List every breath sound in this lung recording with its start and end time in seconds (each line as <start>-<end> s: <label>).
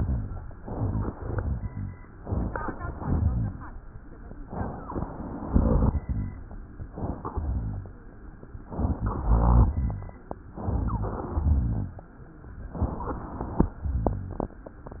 0.00-0.49 s: rhonchi
0.55-1.10 s: inhalation
0.55-1.10 s: crackles
1.16-2.01 s: exhalation
1.16-2.01 s: rhonchi
2.22-2.94 s: inhalation
2.22-2.94 s: crackles
3.02-3.74 s: exhalation
3.02-3.74 s: rhonchi
4.33-5.05 s: inhalation
4.48-5.05 s: wheeze
5.46-6.42 s: exhalation
5.46-6.42 s: rhonchi
6.91-7.34 s: inhalation
7.34-8.05 s: exhalation
7.34-8.05 s: rhonchi
8.61-9.32 s: inhalation
8.80-9.34 s: wheeze
9.30-10.19 s: exhalation
9.30-10.19 s: rhonchi
10.55-11.33 s: inhalation
10.68-11.33 s: wheeze
11.38-12.03 s: exhalation
11.38-12.03 s: rhonchi
12.77-13.64 s: inhalation
12.77-13.64 s: wheeze
13.83-14.57 s: rhonchi